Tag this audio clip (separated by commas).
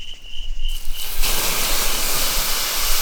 Hiss, Wild animals, Insect, Animal